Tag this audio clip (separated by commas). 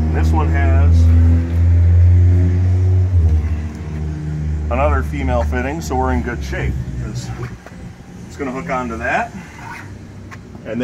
Vehicle, Speech